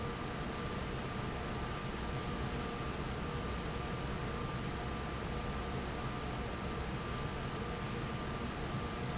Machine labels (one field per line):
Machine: fan